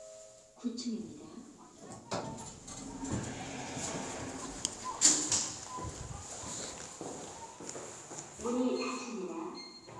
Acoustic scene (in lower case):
elevator